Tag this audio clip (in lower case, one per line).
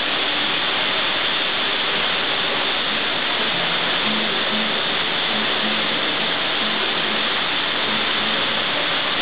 music